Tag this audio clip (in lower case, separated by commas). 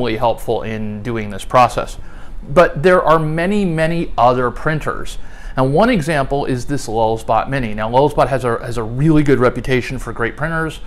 speech